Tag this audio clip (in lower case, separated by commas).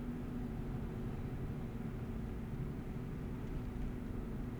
engine